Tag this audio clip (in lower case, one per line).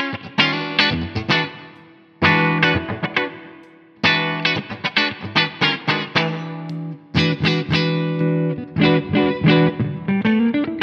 music
electric guitar
musical instrument
guitar
plucked string instrument